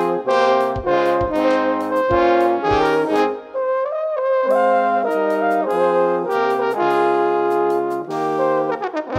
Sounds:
playing trombone, music, brass instrument, trombone

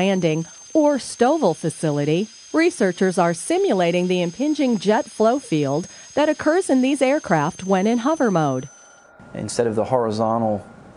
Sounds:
speech

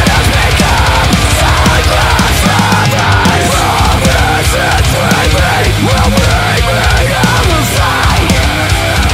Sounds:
music, pop music

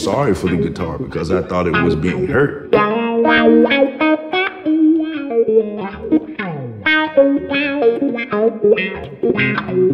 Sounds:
music, speech

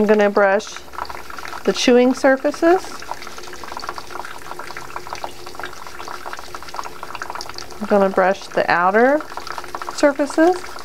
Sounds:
water tap, water

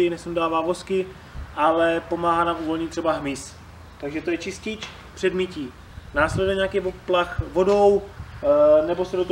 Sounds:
speech

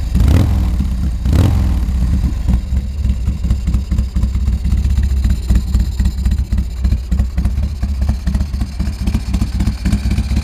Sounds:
motorcycle, driving motorcycle, vehicle

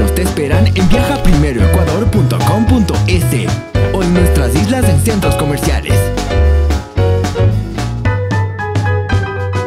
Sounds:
speech, music

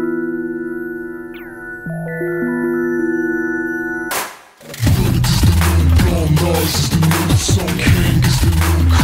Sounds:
music

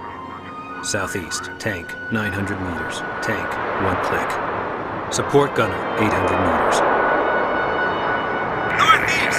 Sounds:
speech, music

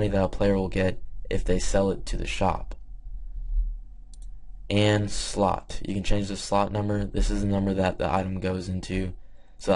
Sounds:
speech

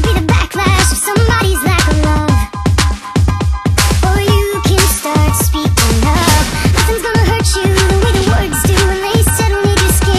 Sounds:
electronica, music

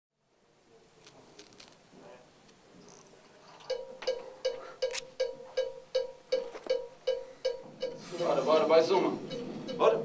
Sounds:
drum kit, music, musical instrument, drum, speech, percussion

